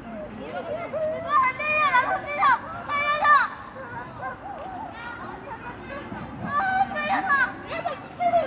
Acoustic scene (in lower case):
residential area